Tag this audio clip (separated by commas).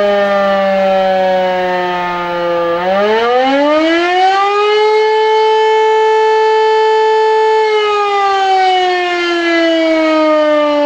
Civil defense siren, Siren